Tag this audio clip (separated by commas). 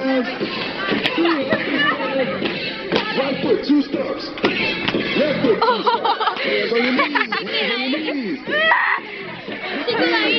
Speech, Music, outside, urban or man-made